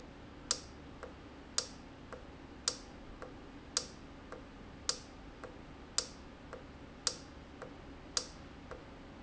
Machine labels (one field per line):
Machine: valve